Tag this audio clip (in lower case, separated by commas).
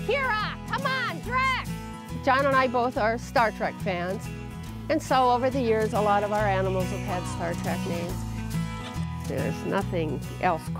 speech, music